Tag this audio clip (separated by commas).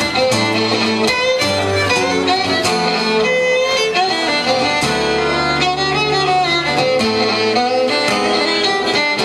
Acoustic guitar, Music, fiddle, Plucked string instrument, Musical instrument, Strum, Guitar